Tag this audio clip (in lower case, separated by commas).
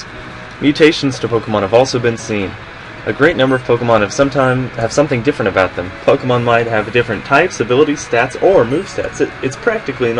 music, speech